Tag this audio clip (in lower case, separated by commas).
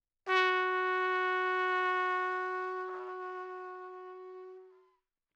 music, brass instrument, musical instrument, trumpet